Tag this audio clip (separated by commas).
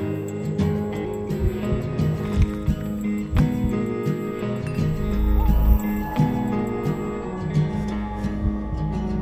Music, Soundtrack music